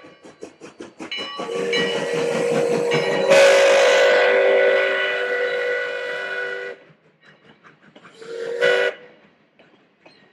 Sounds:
train whistling

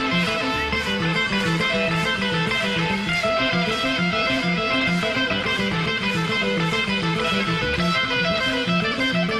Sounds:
Music, inside a large room or hall

